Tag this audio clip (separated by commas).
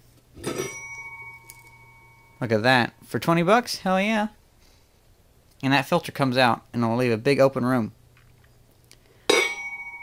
inside a small room, Speech